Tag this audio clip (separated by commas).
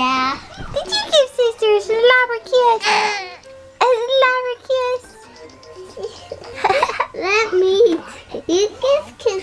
kid speaking, Speech, Babbling, Music